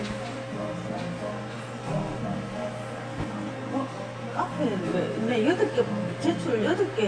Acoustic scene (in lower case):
cafe